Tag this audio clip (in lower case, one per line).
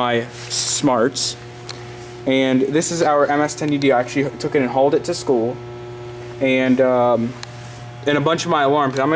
speech